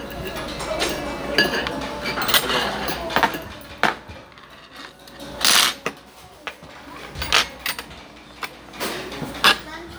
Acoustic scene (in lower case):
restaurant